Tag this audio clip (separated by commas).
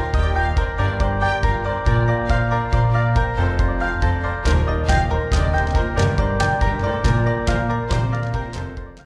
Music